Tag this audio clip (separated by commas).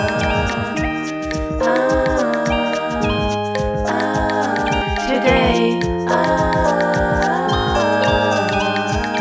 Music